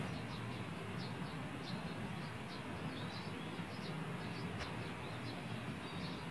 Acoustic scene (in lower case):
park